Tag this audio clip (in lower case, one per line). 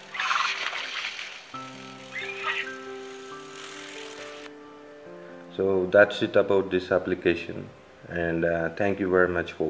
inside a small room
speech
music